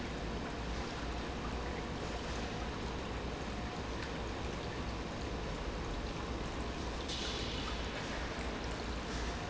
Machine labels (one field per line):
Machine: pump